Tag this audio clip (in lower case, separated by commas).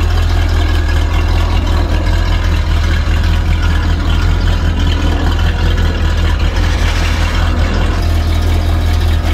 engine, car, vehicle, medium engine (mid frequency), idling